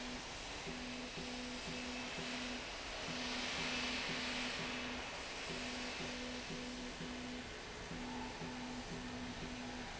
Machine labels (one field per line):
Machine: slide rail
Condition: normal